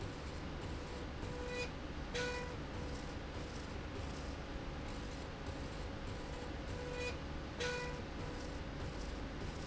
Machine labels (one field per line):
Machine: slide rail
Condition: normal